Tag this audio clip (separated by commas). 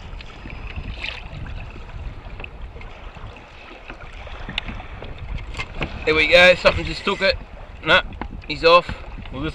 canoe, Speech, Boat, Vehicle